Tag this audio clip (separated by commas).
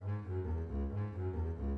Bowed string instrument, Music, Musical instrument